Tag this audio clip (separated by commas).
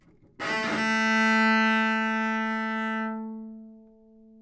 Bowed string instrument, Musical instrument, Music